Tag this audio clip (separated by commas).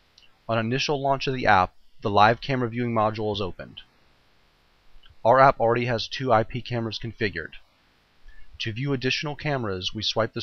Speech